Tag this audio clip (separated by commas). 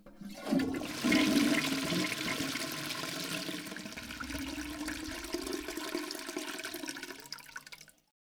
home sounds, Water, Toilet flush